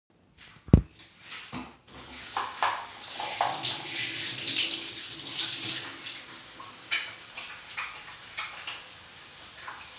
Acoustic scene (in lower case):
restroom